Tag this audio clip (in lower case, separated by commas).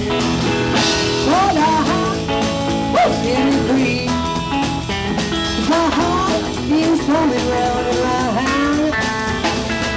music